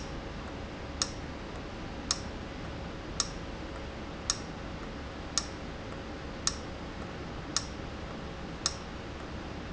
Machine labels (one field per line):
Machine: valve